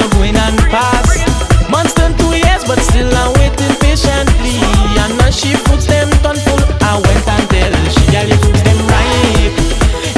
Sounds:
Music, Rhythm and blues

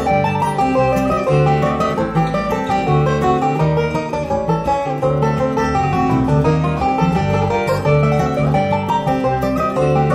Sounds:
Music

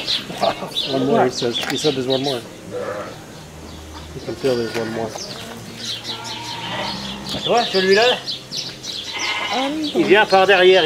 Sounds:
Animal, Music, Speech

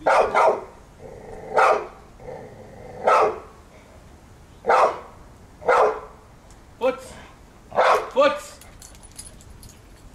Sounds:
Bark, Domestic animals, Speech, Dog, Animal, canids

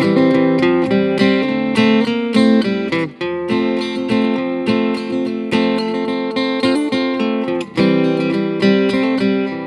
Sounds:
Acoustic guitar, Plucked string instrument, Musical instrument, Guitar, Music

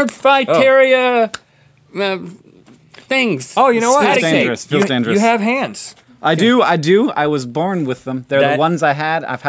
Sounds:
Speech

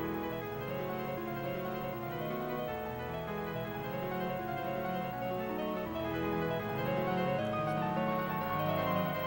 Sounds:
Music

